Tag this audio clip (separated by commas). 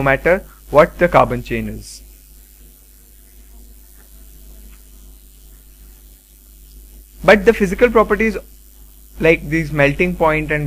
inside a small room, Speech